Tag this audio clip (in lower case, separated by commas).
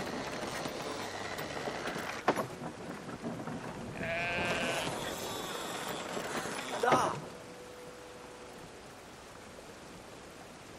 sheep, speech